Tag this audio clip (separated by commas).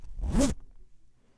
Domestic sounds, Zipper (clothing)